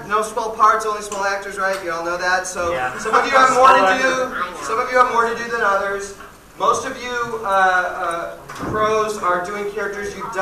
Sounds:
Speech

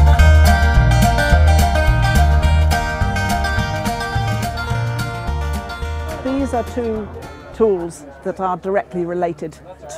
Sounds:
Speech, Music

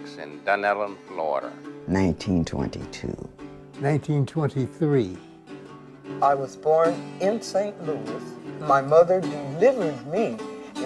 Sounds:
Speech, Music

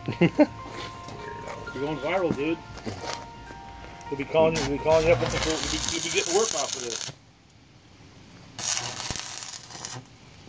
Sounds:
Music, Speech

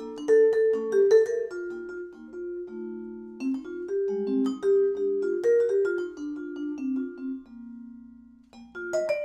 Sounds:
Musical instrument, xylophone, Percussion, Music

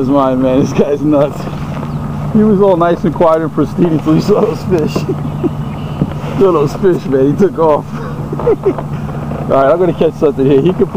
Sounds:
Water vehicle, Vehicle, Speech

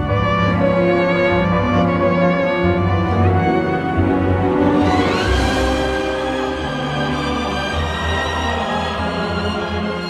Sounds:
Music

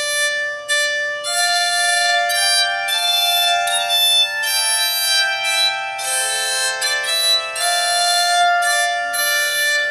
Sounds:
playing zither

